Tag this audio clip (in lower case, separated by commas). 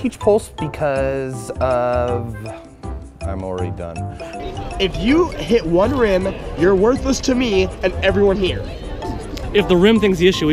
music, speech, percussion